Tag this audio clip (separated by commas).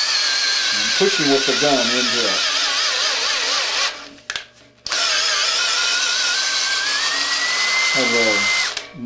Speech